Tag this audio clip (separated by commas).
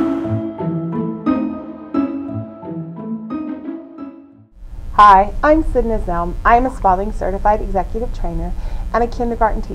Music, Speech